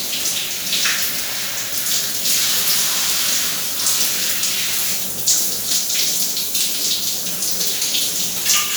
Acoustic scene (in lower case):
restroom